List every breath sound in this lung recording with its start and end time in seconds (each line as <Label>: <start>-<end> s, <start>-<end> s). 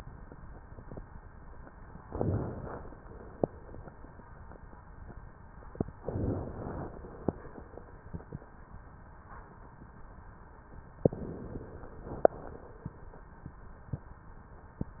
Inhalation: 2.02-3.36 s, 5.93-7.27 s, 10.93-12.27 s